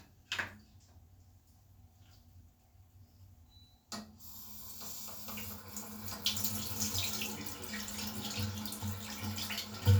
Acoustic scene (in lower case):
restroom